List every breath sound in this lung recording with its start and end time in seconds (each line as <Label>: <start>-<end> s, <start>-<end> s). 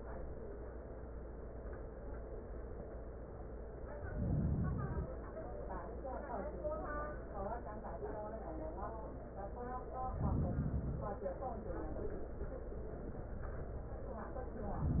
Inhalation: 4.00-5.17 s, 10.06-11.24 s